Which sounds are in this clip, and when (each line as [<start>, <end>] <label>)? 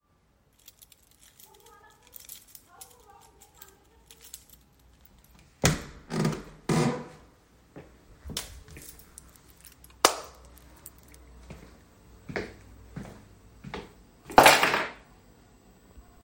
[0.59, 5.53] keys
[8.99, 9.81] keys
[9.98, 10.23] light switch
[11.40, 11.82] footsteps
[12.24, 12.66] footsteps
[12.91, 13.27] footsteps
[13.60, 14.00] footsteps